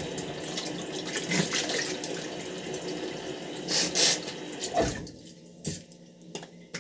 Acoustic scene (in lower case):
restroom